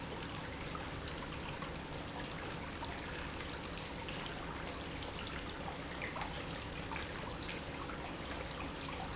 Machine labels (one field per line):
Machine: pump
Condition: normal